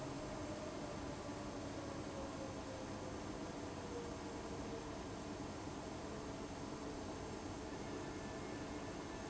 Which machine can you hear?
fan